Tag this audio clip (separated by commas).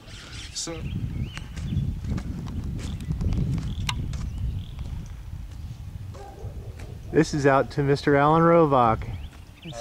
Speech, Animal